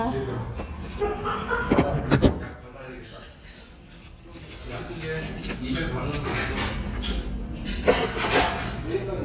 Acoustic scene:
restaurant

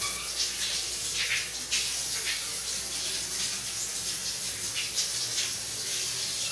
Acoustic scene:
restroom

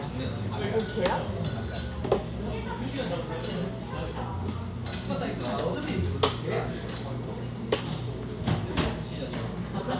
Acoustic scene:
cafe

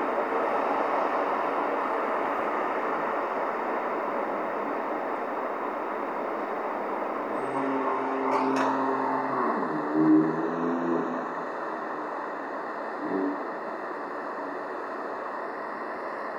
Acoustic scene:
street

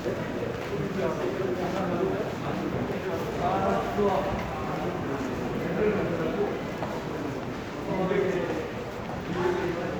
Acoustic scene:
crowded indoor space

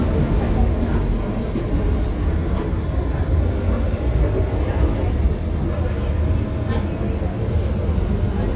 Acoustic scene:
subway train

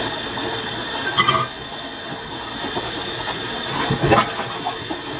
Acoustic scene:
kitchen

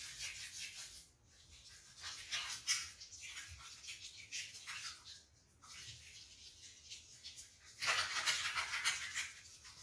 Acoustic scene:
restroom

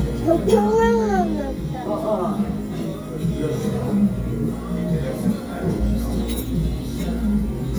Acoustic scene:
restaurant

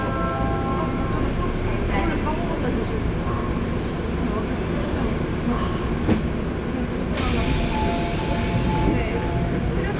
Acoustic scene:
subway train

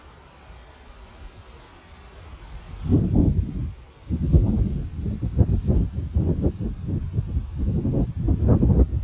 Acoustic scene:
residential area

